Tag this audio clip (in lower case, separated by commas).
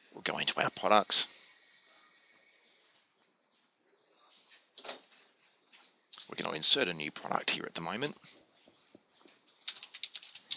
speech, inside a small room